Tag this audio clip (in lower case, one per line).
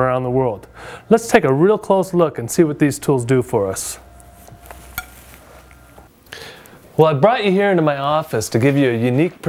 speech